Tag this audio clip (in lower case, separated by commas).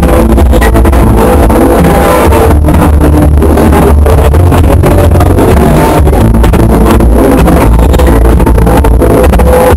music, electronic music